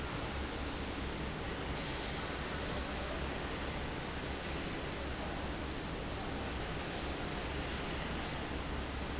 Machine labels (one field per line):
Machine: fan